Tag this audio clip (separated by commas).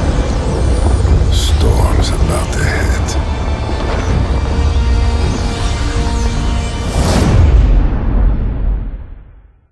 Music, Speech